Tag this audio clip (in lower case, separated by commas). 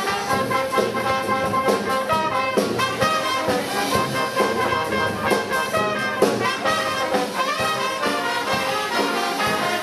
music, speech, orchestra, brass instrument